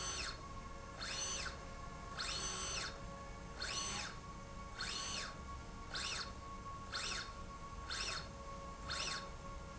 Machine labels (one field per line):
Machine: slide rail